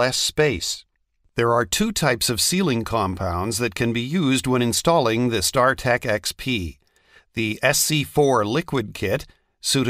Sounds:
speech

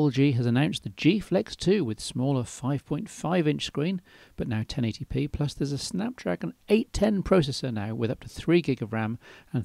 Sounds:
speech

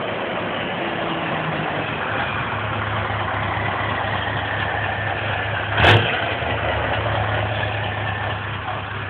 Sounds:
ratchet, mechanisms

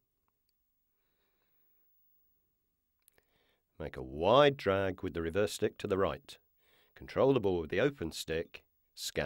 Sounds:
silence, speech

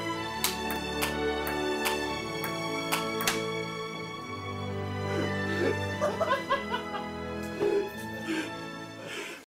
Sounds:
music

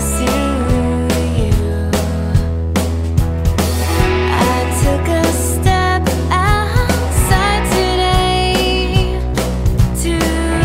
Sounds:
music

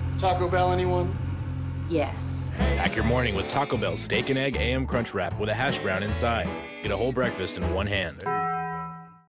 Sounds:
music, speech

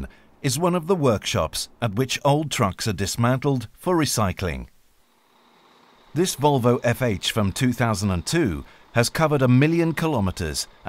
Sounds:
speech

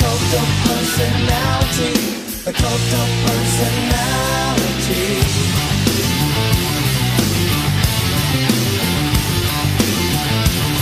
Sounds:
music, progressive rock

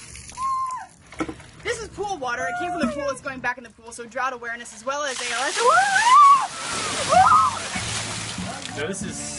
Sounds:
outside, rural or natural, music, speech

